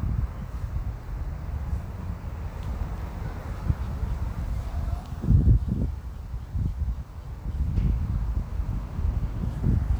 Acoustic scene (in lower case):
residential area